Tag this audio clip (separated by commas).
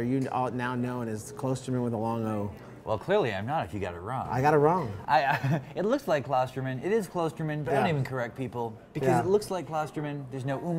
Speech